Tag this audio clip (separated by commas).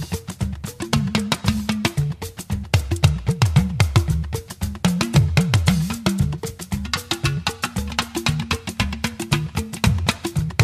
Afrobeat, Music, Music of Africa